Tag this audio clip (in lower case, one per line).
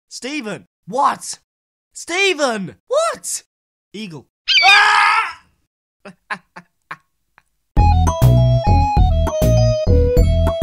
speech
music